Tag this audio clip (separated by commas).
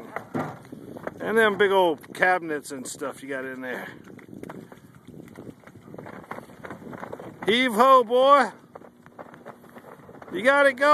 Speech